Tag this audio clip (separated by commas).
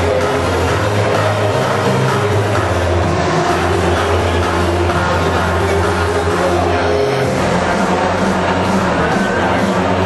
Speech, Music